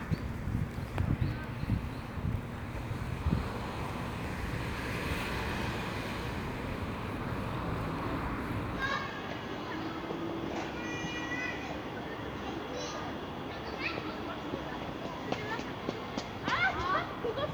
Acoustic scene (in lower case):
residential area